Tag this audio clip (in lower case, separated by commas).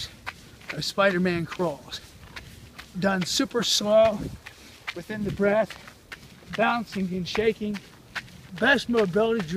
speech, run